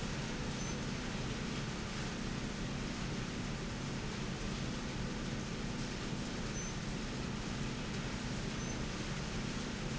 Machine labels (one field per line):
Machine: slide rail